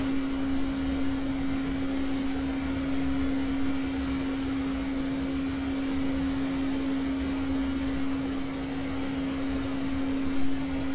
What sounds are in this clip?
engine of unclear size